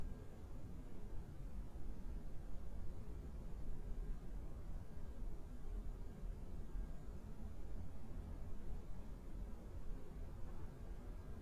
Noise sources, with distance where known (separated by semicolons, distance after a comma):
background noise